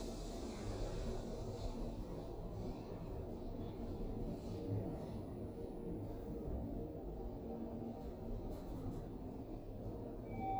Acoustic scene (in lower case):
elevator